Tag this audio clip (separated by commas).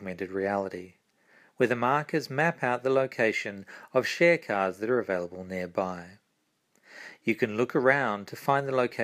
Speech